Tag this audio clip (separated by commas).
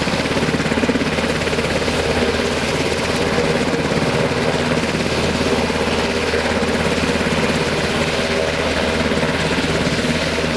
Aircraft, Helicopter, Vehicle